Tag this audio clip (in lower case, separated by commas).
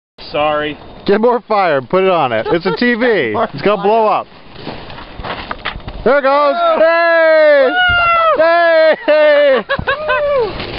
speech, fire